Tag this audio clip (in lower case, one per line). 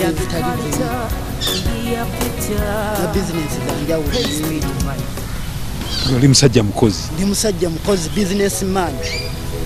music
speech